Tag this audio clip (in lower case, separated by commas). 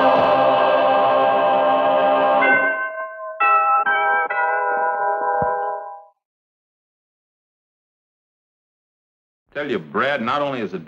speech, music